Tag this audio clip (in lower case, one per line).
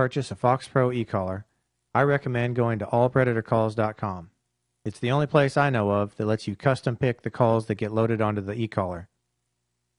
speech